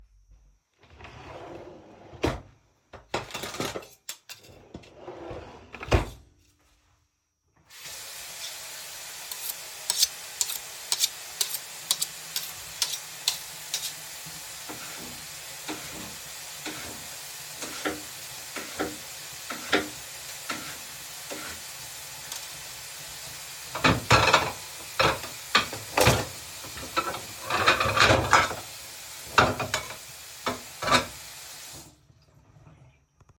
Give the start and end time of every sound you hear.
[0.78, 2.69] wardrobe or drawer
[2.92, 4.49] cutlery and dishes
[4.72, 6.40] wardrobe or drawer
[7.75, 31.98] running water
[9.28, 13.97] cutlery and dishes
[14.61, 21.50] cutlery and dishes
[23.62, 31.22] cutlery and dishes

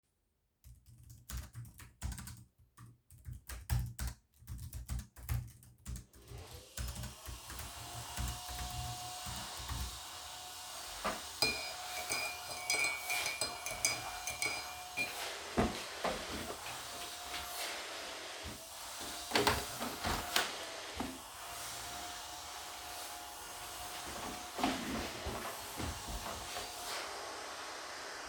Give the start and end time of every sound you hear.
[1.16, 10.28] keyboard typing
[6.23, 28.29] vacuum cleaner
[11.27, 15.54] cutlery and dishes
[19.18, 20.75] window

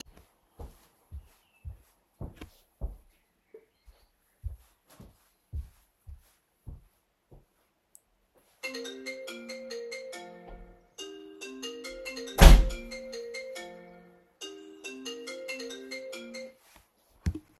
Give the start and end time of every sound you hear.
[0.15, 8.12] footsteps
[8.59, 17.08] phone ringing
[12.19, 13.28] door

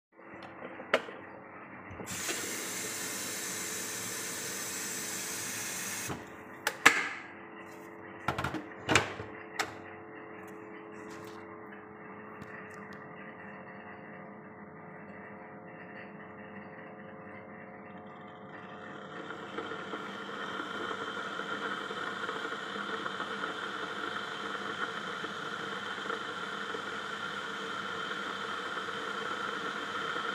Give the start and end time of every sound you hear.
[1.97, 6.51] running water
[18.77, 30.31] coffee machine

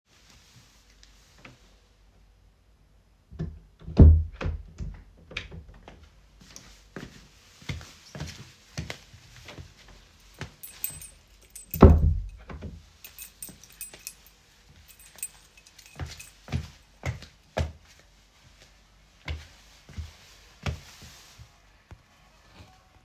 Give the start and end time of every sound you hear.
[3.75, 4.63] door
[6.52, 9.90] footsteps
[10.34, 11.63] keys
[11.57, 12.39] door
[12.89, 14.18] keys
[15.03, 16.39] keys
[15.82, 20.83] footsteps

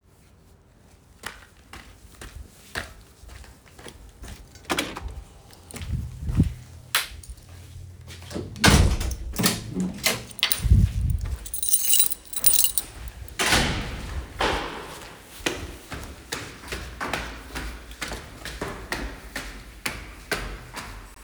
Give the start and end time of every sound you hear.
[1.11, 4.55] footsteps
[4.63, 5.43] door
[8.52, 10.34] door
[11.37, 13.96] keys
[15.26, 21.00] footsteps

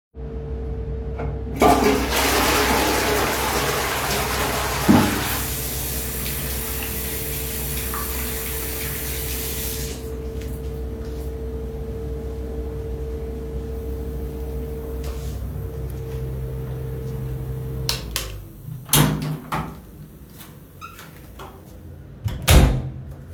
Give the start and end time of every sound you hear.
[1.52, 5.50] toilet flushing
[5.55, 10.09] running water
[17.83, 18.39] light switch
[18.85, 19.96] door
[20.68, 21.17] door
[22.19, 23.28] door

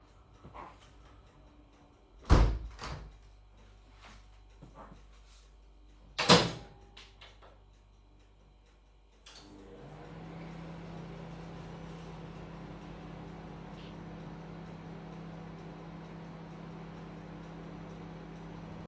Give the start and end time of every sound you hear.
[2.15, 3.13] window
[5.98, 18.86] microwave

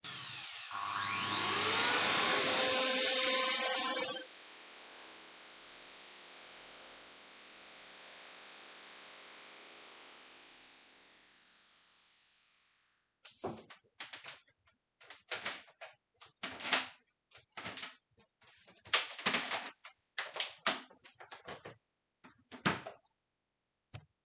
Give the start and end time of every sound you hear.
[0.00, 10.86] vacuum cleaner

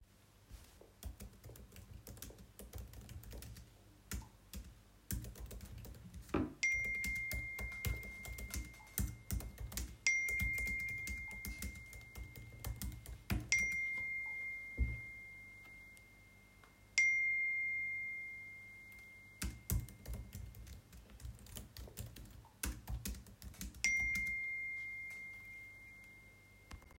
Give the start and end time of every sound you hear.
[0.23, 26.65] keyboard typing
[6.42, 20.07] phone ringing
[23.49, 25.21] phone ringing

